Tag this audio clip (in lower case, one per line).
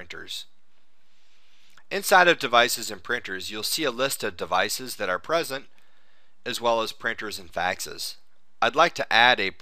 speech